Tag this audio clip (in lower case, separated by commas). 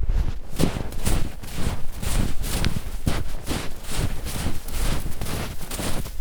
run